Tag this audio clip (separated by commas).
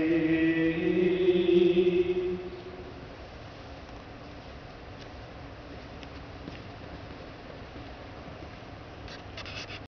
Mantra